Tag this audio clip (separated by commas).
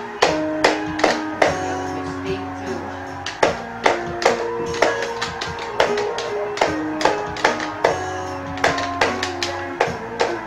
Plucked string instrument, Acoustic guitar, Strum, Music, Guitar, Musical instrument, Speech